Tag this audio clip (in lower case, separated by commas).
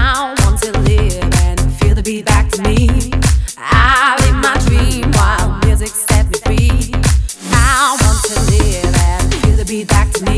music